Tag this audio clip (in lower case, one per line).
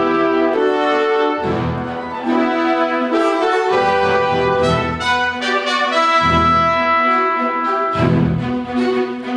music
classical music
orchestra
brass instrument
french horn